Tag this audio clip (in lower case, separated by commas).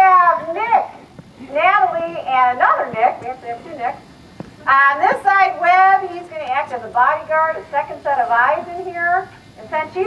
speech